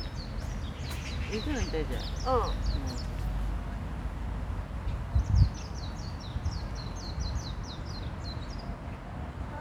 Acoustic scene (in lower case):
park